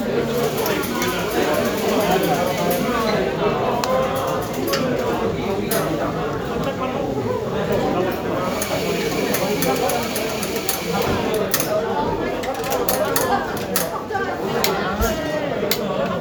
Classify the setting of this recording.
cafe